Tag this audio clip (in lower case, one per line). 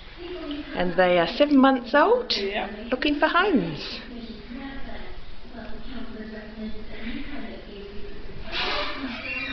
speech